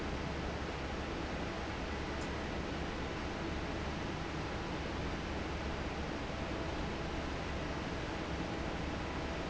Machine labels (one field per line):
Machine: fan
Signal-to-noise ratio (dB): -6 dB